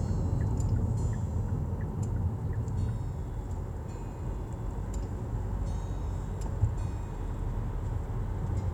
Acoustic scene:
car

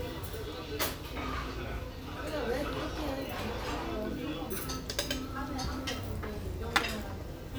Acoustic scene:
restaurant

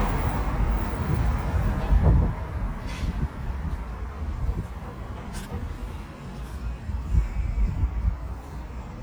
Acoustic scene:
street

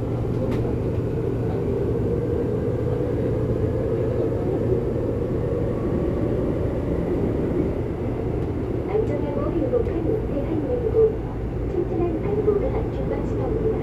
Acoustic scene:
subway train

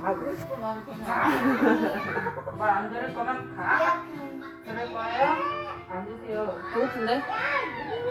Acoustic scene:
crowded indoor space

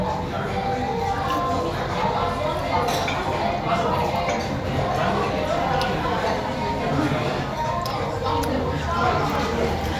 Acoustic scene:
crowded indoor space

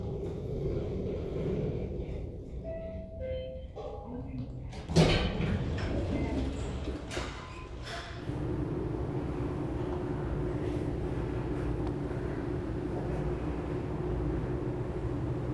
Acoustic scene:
elevator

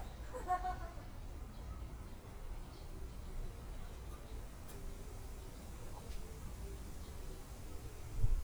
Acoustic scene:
park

